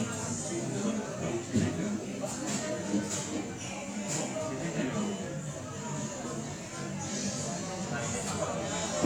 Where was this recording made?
in a cafe